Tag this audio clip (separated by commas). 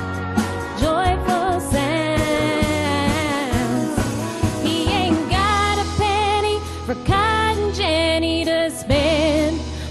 Singing, Music, Pop music, inside a large room or hall